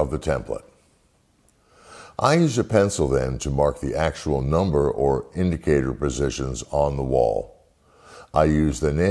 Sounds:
Speech

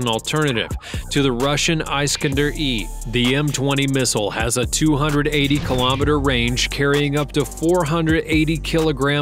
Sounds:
firing cannon

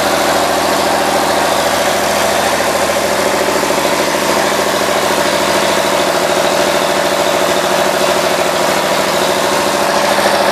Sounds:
Engine

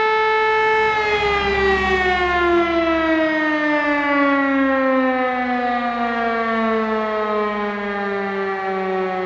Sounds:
civil defense siren

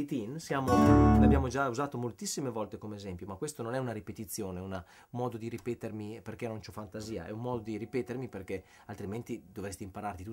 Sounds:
Music, Speech, Acoustic guitar

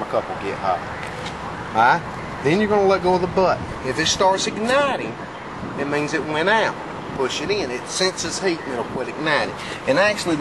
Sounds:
Speech

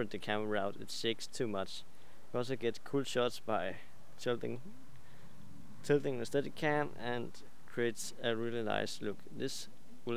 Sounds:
Speech

